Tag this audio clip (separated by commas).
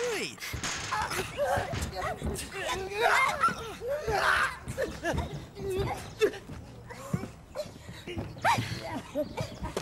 Speech